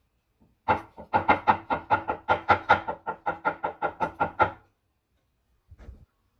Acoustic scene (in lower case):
kitchen